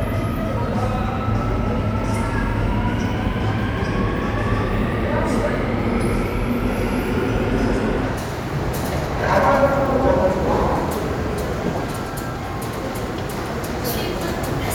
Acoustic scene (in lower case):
subway station